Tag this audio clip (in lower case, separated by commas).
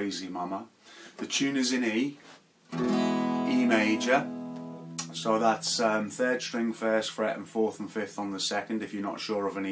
guitar, musical instrument, strum, speech, music, plucked string instrument, acoustic guitar